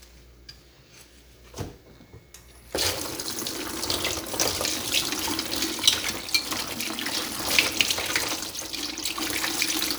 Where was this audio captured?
in a kitchen